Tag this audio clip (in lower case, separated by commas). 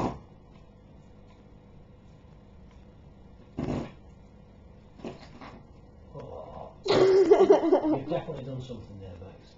fart, speech